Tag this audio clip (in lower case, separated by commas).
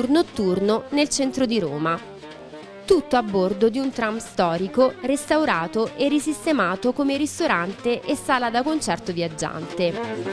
music, speech